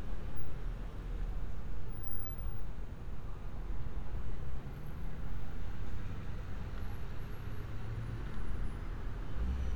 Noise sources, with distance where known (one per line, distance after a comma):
background noise